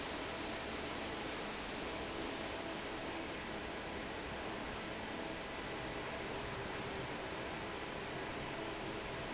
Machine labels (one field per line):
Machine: fan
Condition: normal